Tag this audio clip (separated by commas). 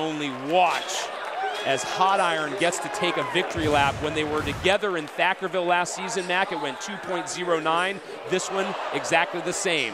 Speech